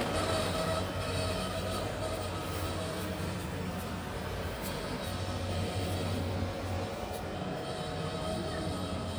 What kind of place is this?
residential area